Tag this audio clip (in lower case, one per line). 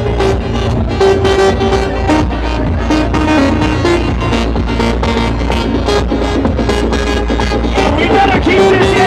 house music
music
speech